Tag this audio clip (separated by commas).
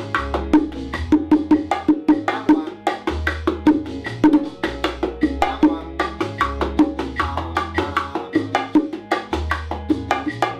playing bongo